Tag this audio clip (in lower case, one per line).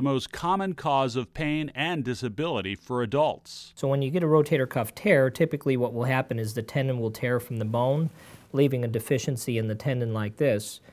speech